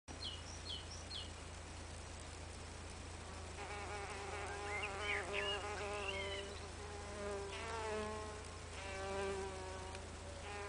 Birds are singing and insects are buzzing